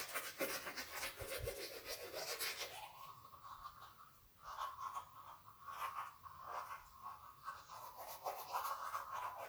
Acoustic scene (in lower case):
restroom